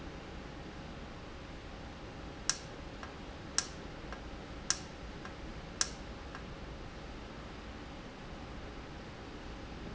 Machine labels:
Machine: valve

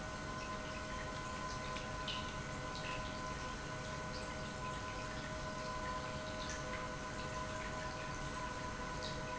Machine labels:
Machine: pump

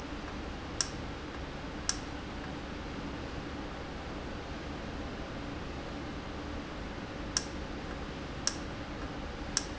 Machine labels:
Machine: valve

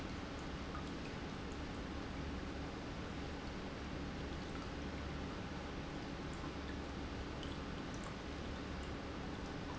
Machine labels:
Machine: pump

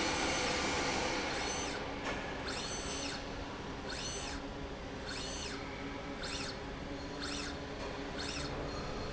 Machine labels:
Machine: slide rail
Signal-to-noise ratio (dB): -6 dB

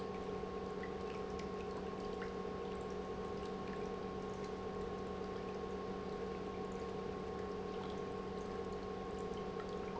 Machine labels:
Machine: pump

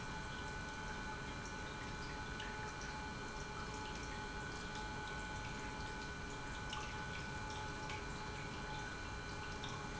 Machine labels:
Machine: pump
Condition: normal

